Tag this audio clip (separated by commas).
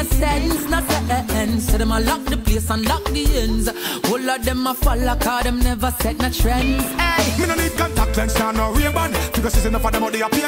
Music